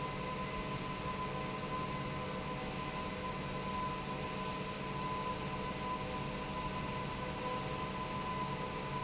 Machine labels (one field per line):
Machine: pump